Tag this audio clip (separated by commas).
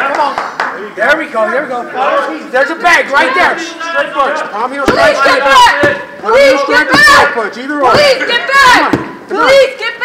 Speech